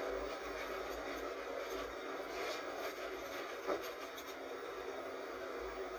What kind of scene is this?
bus